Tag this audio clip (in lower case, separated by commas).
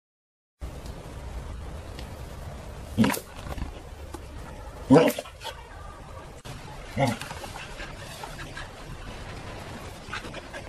dog, animal